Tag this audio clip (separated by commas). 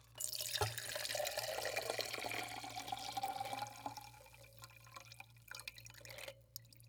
Liquid